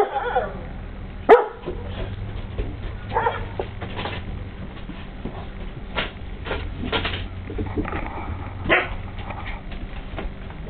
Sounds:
pets, bow-wow, whimper (dog), dog, yip, animal

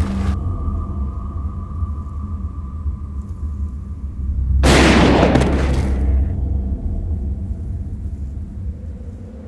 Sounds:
gunfire

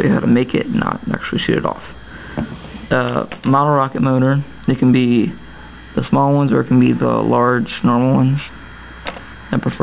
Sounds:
speech

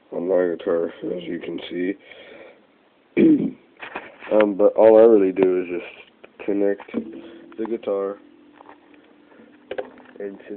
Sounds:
speech

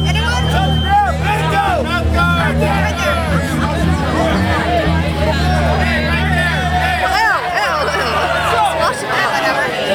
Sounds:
music, speech

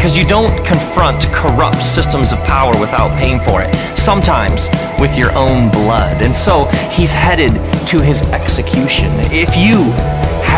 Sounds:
music, speech

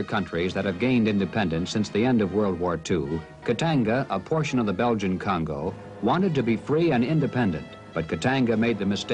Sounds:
speech, music

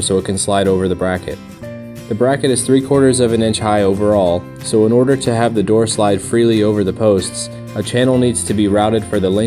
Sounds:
music, speech

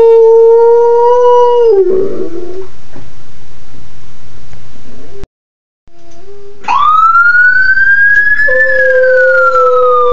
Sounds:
domestic animals, siren, dog, emergency vehicle, police car (siren), animal, whimper (dog)

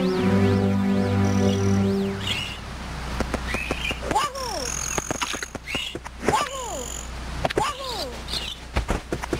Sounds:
outside, rural or natural, speech, music

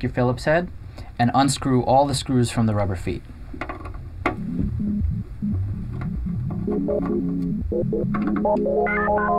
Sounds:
music, speech

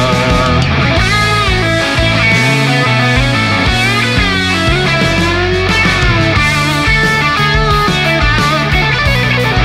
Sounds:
musical instrument, music, guitar, plucked string instrument, heavy metal

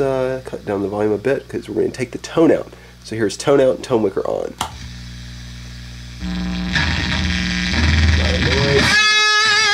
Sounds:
musical instrument, guitar, music, speech, effects unit, plucked string instrument

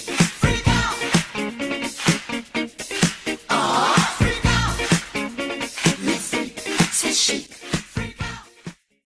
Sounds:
music

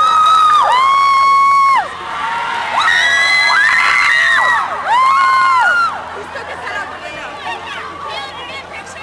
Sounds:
speech

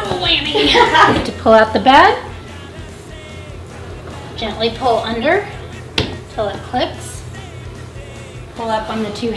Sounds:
speech, music

